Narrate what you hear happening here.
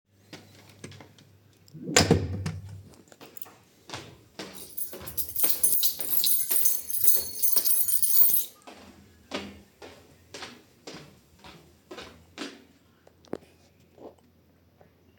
I opened the door from my bedroom to the hallway and exited the bedroom. Then I closed the door and went ahead into the hallway while my keychain was dinging, because it's hanged on my hip.